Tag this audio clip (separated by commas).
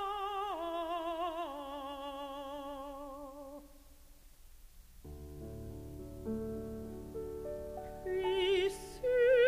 Opera, Music